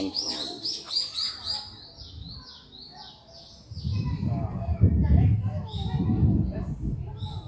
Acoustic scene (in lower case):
park